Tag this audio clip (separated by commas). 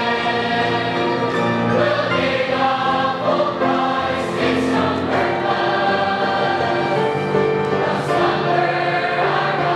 Music, Choir